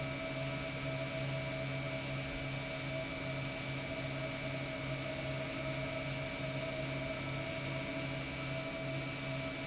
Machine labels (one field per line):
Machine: pump